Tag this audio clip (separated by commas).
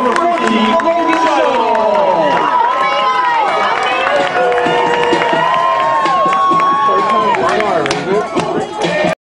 Music, Speech